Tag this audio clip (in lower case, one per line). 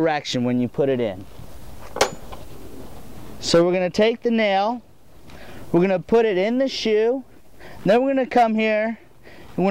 speech